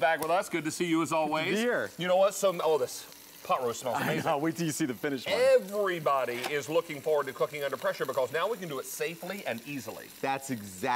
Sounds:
Speech

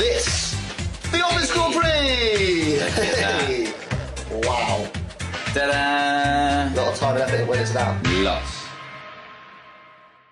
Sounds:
Speech, Music

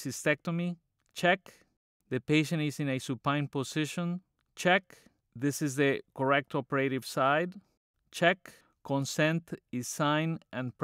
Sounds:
Speech

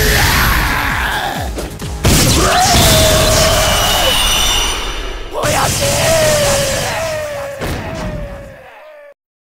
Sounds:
Yell, Bellow, Music, Speech, Whoop

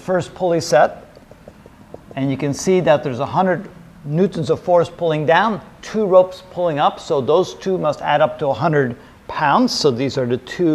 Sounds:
Speech

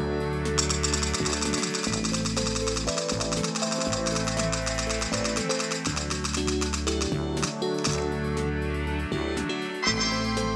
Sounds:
Music

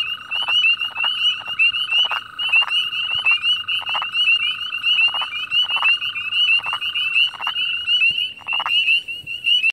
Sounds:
Frog

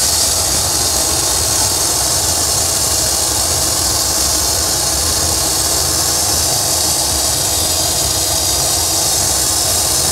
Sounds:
Silence

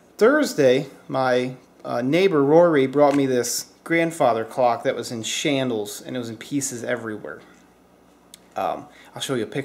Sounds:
Speech

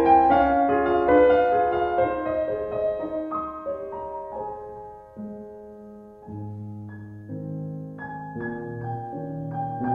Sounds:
xylophone

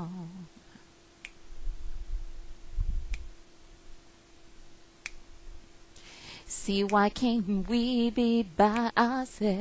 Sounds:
Female singing

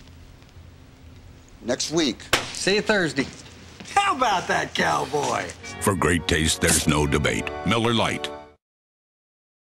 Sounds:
Music, Speech

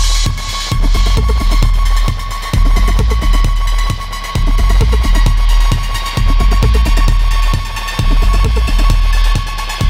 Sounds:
Music

